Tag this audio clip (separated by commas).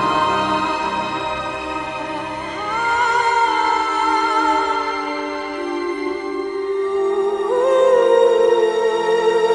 Music